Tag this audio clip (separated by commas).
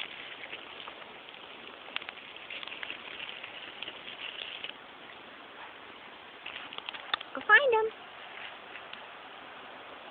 Speech